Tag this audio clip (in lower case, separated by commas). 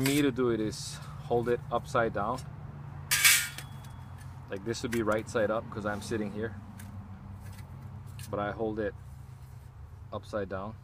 speech